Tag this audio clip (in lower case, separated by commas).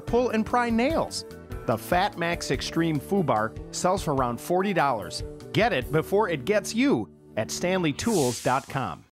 music, speech